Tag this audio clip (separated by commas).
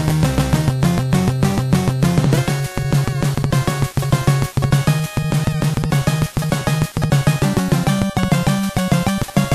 Theme music, Music